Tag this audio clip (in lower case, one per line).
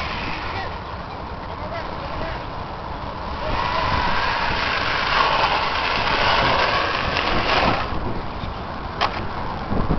car
speech